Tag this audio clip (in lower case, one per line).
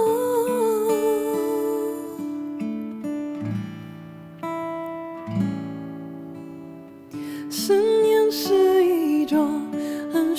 music
acoustic guitar